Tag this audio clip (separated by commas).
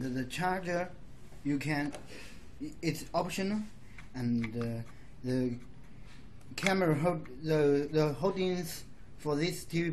Speech